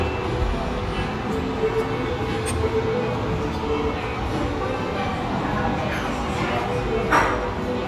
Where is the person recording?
in a restaurant